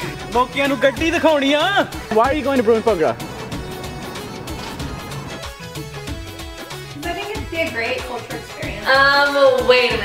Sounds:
Music, Speech

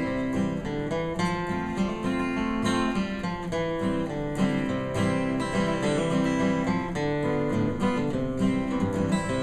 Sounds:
Music, Musical instrument, Acoustic guitar, Strum, Plucked string instrument, Guitar

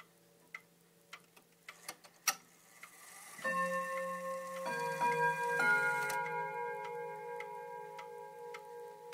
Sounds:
Tubular bells

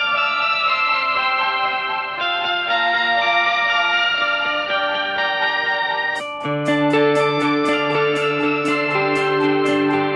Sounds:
Music, Acoustic guitar, Guitar, Musical instrument, Plucked string instrument, Strum

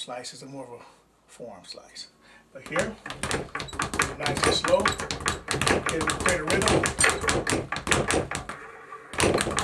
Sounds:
Speech, Bouncing

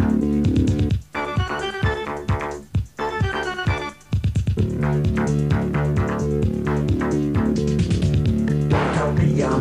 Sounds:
Music

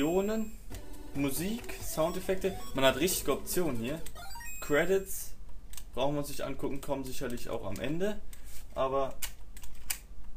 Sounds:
Speech

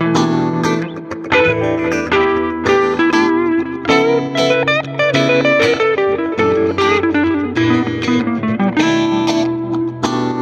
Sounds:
Tapping (guitar technique), Music

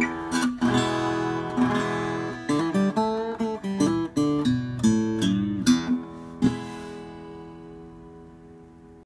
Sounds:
Music, Plucked string instrument, Guitar, Musical instrument, Acoustic guitar, Strum

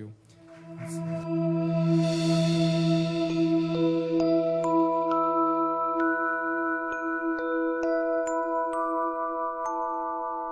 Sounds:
Music

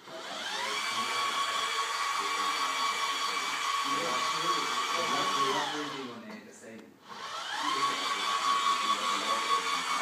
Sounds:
Speech, Printer

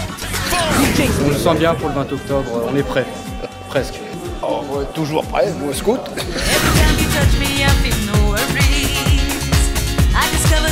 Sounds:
Speech, Music

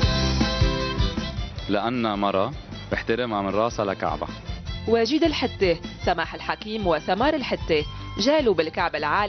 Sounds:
Music, Speech

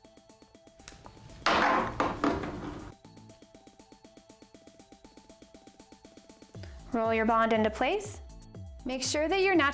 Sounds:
Speech

